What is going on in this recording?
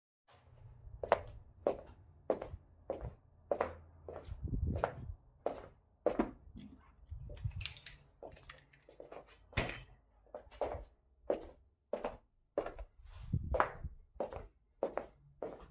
I went to the drawer, took keys and placed them my table.